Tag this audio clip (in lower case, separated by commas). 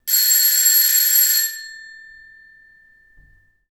bell, alarm, door, domestic sounds, doorbell